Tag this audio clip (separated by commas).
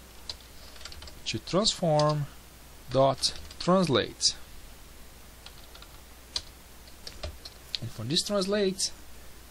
Typing